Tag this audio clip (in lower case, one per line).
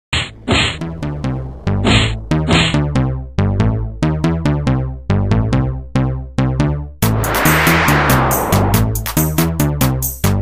drum machine
music